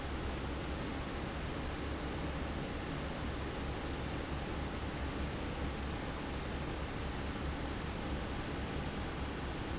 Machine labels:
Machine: fan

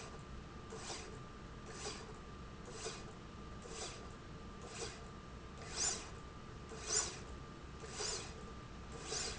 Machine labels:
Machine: slide rail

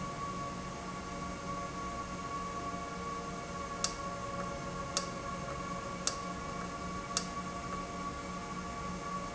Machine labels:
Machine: valve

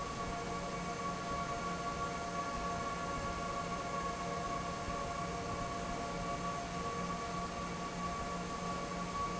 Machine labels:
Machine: fan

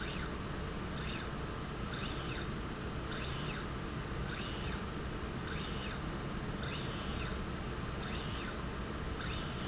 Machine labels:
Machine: slide rail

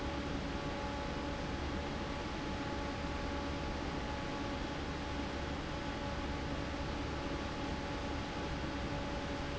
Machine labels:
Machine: fan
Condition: normal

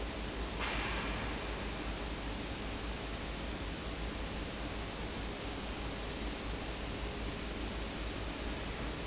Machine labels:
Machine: fan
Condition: abnormal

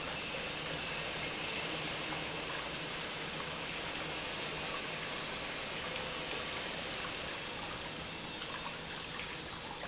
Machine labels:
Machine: pump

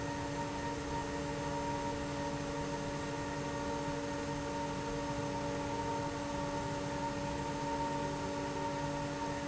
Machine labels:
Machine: fan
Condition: abnormal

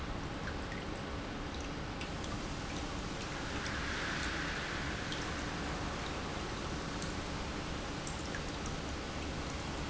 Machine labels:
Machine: pump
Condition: normal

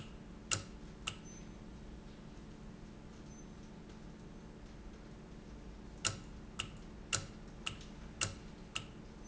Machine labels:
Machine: valve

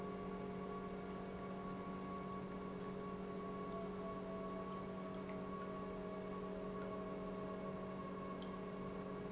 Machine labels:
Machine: pump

